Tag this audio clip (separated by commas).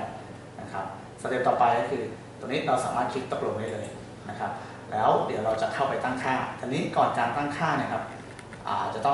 Speech